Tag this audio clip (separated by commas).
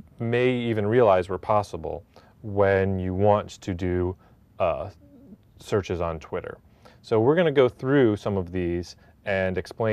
Speech